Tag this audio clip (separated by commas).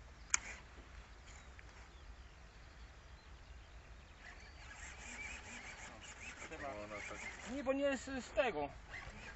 Speech